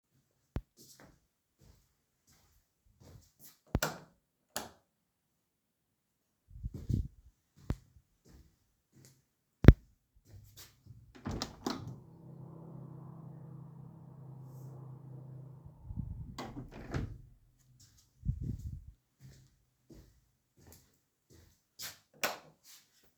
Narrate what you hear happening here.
I walked to the light switches and turned on two lights. Then i walked to the window and opened it. After a while i closed the window, went back to the light swiches and turned off both simultaneously.